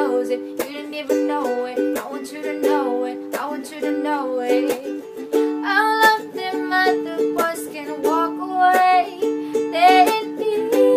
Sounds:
Music, inside a small room, Ukulele

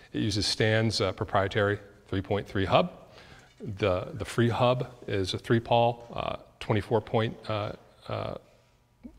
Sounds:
Speech

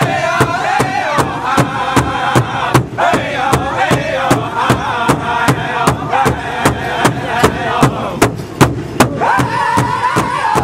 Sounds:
Music

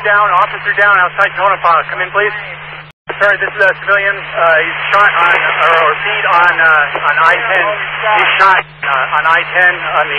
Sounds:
police radio chatter

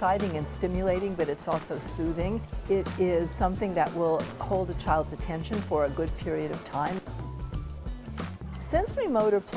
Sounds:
Music, Speech

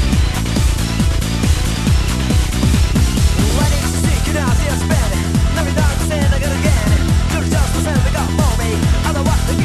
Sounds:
Techno, Music

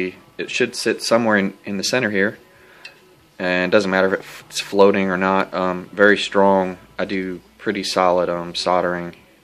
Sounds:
Speech

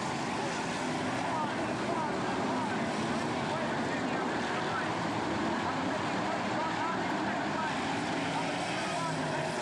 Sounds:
Motor vehicle (road), Vehicle, Car passing by, Speech, Car

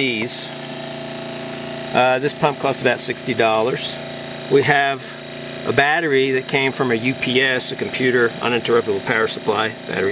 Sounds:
Speech

